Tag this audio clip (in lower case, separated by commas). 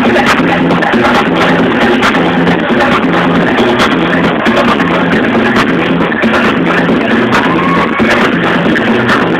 music, techno